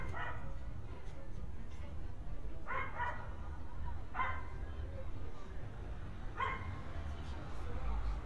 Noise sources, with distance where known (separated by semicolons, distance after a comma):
person or small group talking; dog barking or whining, near